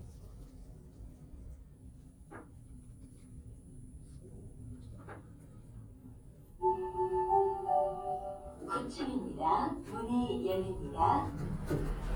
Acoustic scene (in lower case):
elevator